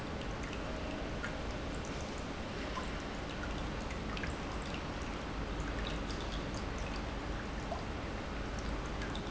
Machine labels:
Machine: pump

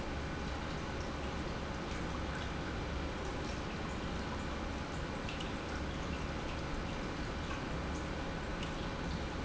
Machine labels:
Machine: pump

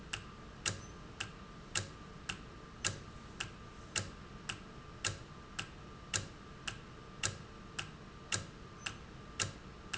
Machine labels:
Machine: valve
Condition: normal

